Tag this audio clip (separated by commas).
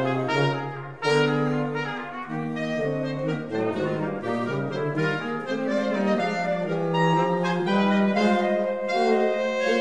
Brass instrument, Trombone